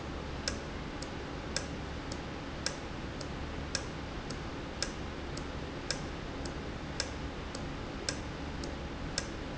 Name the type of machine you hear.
valve